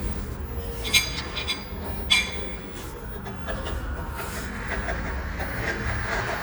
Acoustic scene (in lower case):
cafe